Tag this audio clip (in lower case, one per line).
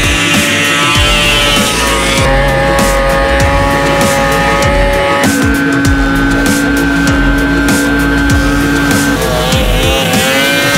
driving snowmobile